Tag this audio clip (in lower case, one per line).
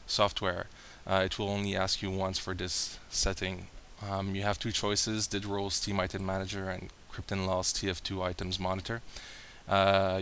speech